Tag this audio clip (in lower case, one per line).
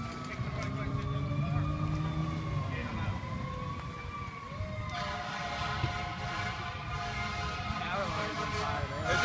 vehicle
fire engine
speech
revving
emergency vehicle